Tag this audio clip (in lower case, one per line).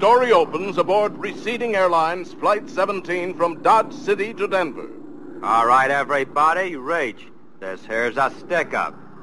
speech